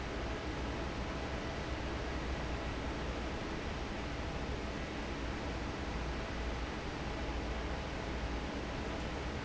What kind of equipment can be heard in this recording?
fan